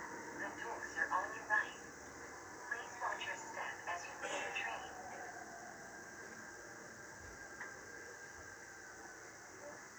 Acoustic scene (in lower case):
subway train